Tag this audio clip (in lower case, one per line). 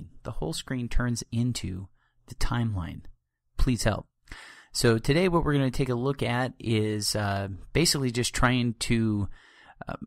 speech